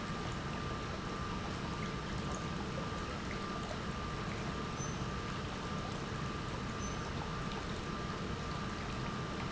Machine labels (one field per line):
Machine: pump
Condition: normal